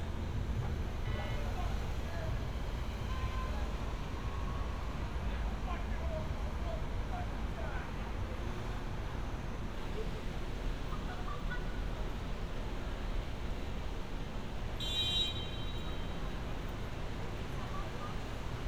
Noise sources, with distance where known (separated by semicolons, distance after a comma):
car horn; unidentified human voice